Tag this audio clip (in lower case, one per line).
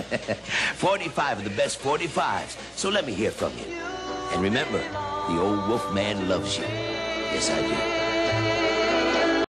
speech
music